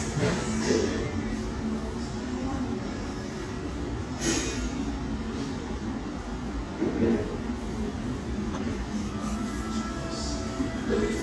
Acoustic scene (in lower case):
cafe